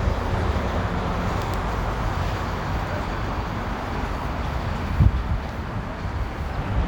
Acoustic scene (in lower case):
residential area